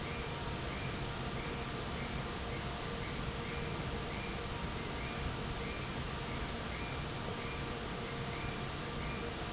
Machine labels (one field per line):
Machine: fan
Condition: normal